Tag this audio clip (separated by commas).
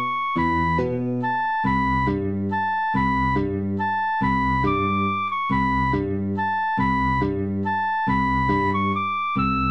Music